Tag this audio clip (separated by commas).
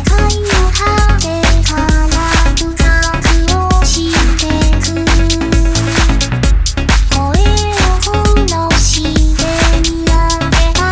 Music